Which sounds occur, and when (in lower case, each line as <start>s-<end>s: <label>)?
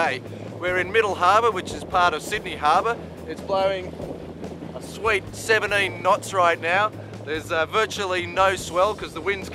0.0s-0.2s: male speech
0.0s-9.5s: speedboat
0.0s-9.5s: music
0.0s-9.5s: wind noise (microphone)
0.2s-0.6s: breathing
0.6s-2.9s: male speech
3.2s-3.9s: male speech
4.8s-5.2s: male speech
5.3s-6.9s: male speech
7.2s-9.5s: male speech